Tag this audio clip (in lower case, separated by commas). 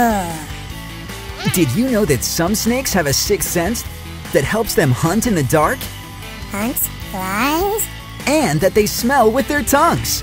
speech, music